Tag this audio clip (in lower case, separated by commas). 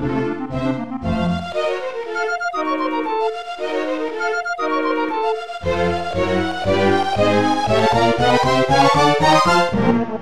music, musical instrument, fiddle